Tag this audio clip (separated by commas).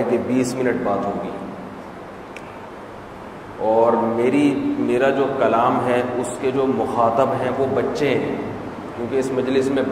Speech